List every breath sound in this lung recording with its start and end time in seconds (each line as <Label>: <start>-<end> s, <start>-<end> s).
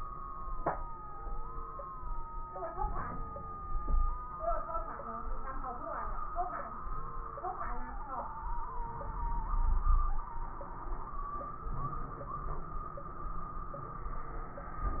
Inhalation: 2.73-3.67 s, 8.85-9.64 s, 11.68-12.68 s
Exhalation: 3.65-4.38 s, 9.61-10.26 s
Wheeze: 3.65-4.38 s, 9.65-10.29 s
Crackles: 11.68-12.68 s